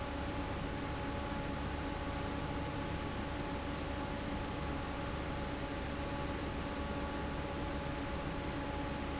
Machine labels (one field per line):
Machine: fan